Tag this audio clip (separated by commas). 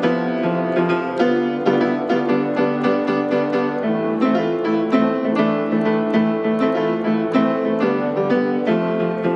Music, Piano